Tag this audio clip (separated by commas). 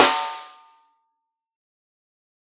Drum, Snare drum, Percussion, Music, Musical instrument